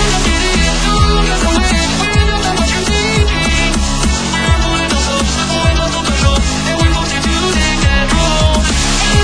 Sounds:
Male singing, Music

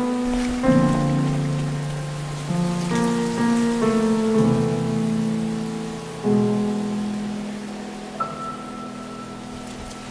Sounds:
Rain on surface, Music

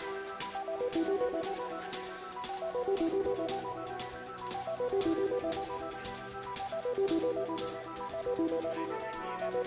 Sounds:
Music

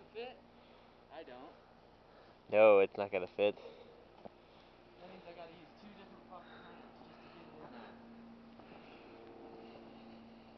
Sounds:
outside, rural or natural, Speech

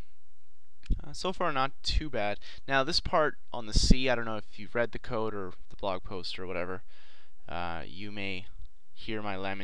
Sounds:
Speech

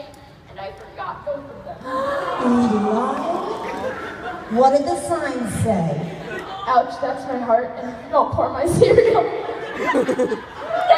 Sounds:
Speech, inside a large room or hall

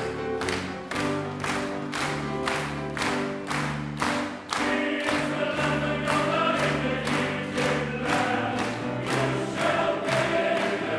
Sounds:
Music

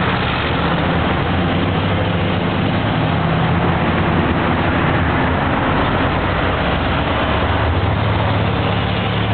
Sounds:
roadway noise

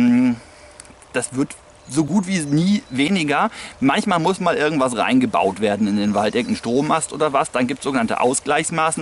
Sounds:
outside, rural or natural, Speech

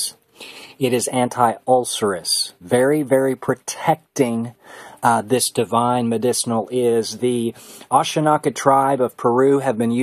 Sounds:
Speech

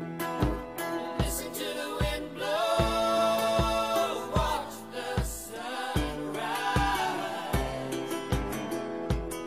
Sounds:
Music

